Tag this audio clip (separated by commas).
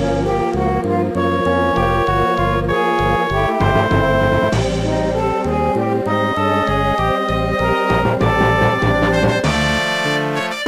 Music, Tender music